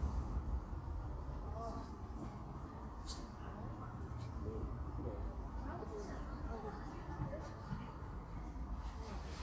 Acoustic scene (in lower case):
park